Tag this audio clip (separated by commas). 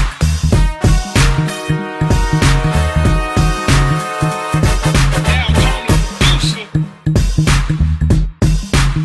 Music